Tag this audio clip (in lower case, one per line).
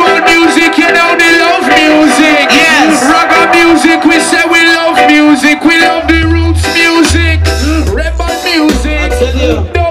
song
music